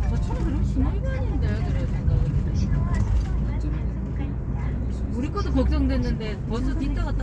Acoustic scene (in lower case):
car